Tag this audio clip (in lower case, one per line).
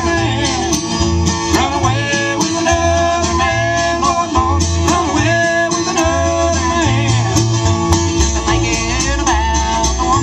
country
music
bluegrass